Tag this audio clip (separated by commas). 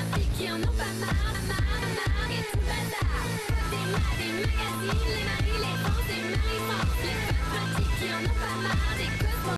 Music